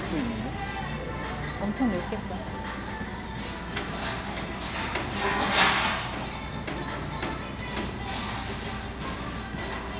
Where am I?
in a restaurant